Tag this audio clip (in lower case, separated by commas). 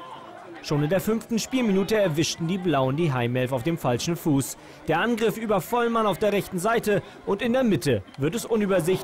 speech